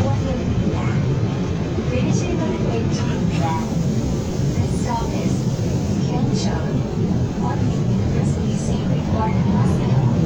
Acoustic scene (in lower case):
subway train